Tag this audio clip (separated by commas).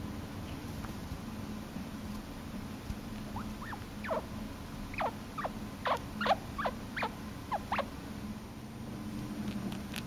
chinchilla barking